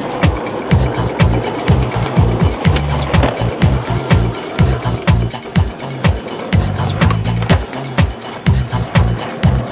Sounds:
skateboard
music

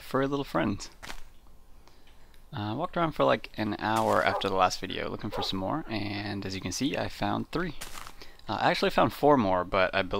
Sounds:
speech
bow-wow

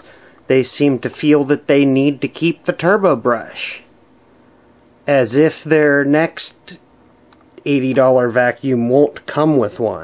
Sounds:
speech

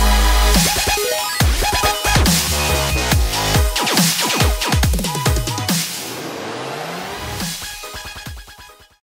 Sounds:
dubstep
music
electronic music

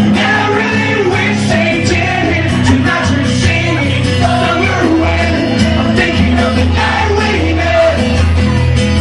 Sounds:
music

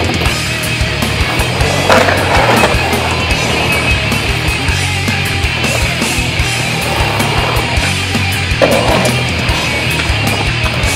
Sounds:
music
skateboard

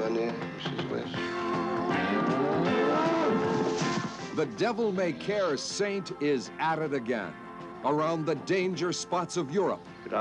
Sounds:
music
speech

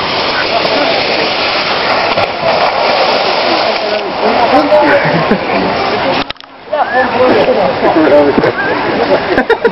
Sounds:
water
speech

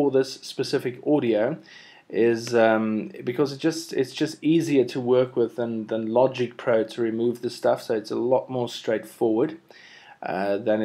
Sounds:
speech

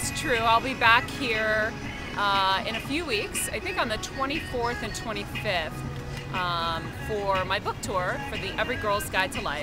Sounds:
speech
music

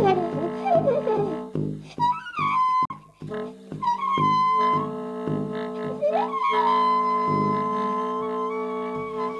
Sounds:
wind instrument

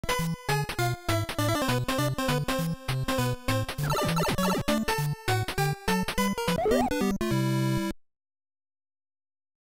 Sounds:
sound effect
music

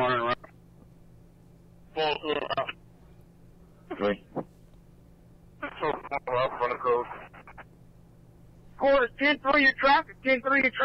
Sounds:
police radio chatter

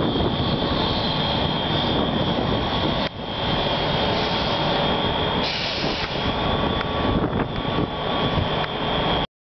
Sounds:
vehicle
medium engine (mid frequency)

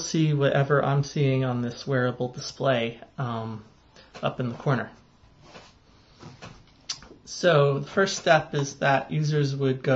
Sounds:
speech

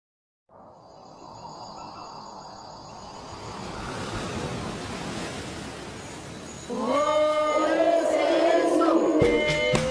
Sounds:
insect
music

